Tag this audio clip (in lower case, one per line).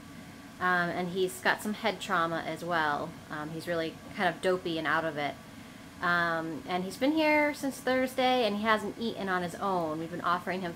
speech